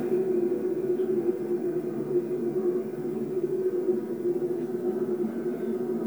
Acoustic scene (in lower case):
subway train